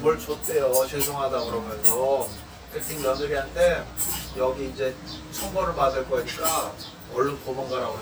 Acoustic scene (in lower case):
restaurant